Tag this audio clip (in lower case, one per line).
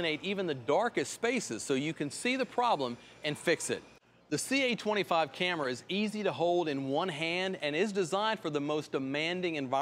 speech